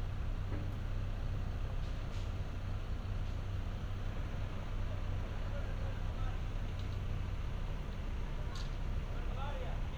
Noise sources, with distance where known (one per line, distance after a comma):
person or small group talking, far